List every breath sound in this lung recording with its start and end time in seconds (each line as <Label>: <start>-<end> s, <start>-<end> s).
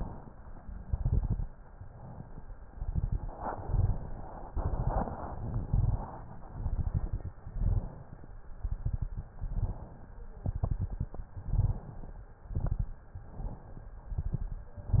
Inhalation: 0.00-0.81 s, 1.61-2.67 s, 3.38-4.27 s, 5.40-6.27 s, 7.50-8.33 s, 9.39-10.22 s, 11.37-12.26 s, 13.16-14.05 s
Exhalation: 0.83-1.55 s, 2.68-3.37 s, 4.51-5.38 s, 6.47-7.30 s, 8.51-9.34 s, 10.46-11.29 s, 12.23-13.11 s, 14.17-14.77 s
Crackles: 0.83-1.55 s, 2.68-3.37 s, 4.51-5.38 s, 5.40-6.27 s, 6.47-7.30 s, 8.51-9.34 s, 10.46-11.29 s, 11.39-12.22 s, 12.23-13.11 s, 14.17-14.77 s